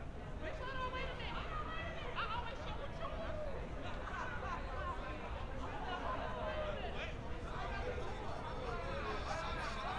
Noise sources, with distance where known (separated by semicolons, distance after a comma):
person or small group shouting, far